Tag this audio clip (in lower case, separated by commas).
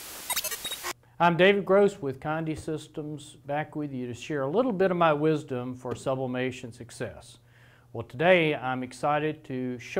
speech